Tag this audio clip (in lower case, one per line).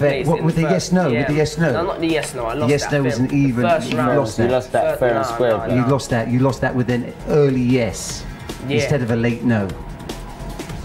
speech
music